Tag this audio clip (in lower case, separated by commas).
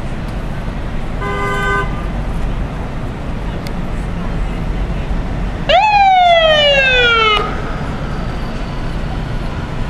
vehicle